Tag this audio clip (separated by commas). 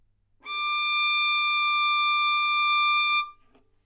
Musical instrument, Bowed string instrument, Music